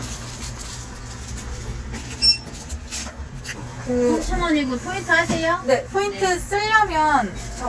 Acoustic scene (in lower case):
crowded indoor space